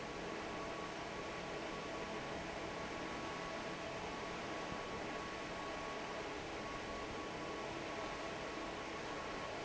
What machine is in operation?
fan